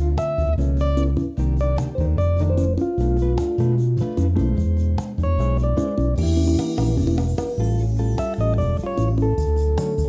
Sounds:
music

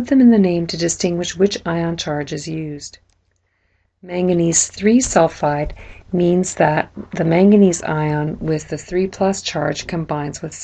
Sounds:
speech

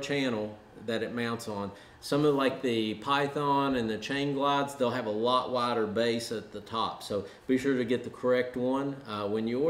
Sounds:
speech

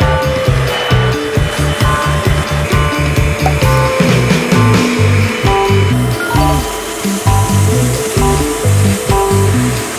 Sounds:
vacuum cleaner cleaning floors

